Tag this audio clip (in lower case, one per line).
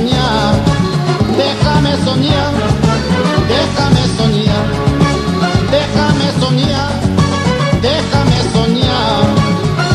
ska
music
music of latin america
flamenco